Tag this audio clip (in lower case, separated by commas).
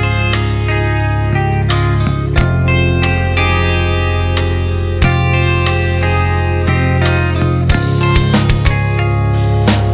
music